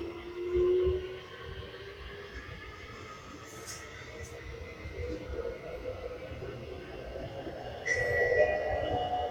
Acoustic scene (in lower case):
subway train